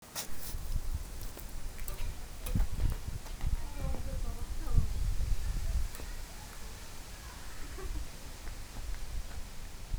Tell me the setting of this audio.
park